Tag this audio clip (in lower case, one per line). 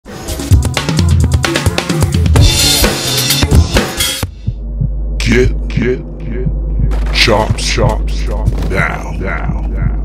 rimshot
snare drum
drum kit
percussion
drum
bass drum